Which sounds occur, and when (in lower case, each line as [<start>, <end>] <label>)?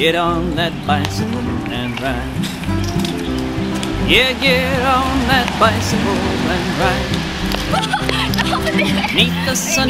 [0.00, 1.21] male singing
[0.00, 9.85] bus
[0.00, 9.85] music
[1.62, 2.29] male singing
[2.39, 2.60] generic impact sounds
[2.78, 3.39] generic impact sounds
[3.69, 3.88] generic impact sounds
[4.04, 7.31] male singing
[7.47, 7.61] generic impact sounds
[7.67, 9.08] giggle
[7.76, 8.12] generic impact sounds
[8.59, 9.07] female speech
[9.13, 9.85] male singing
[9.62, 9.85] female speech